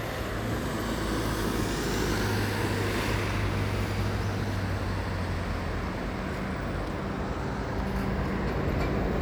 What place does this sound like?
street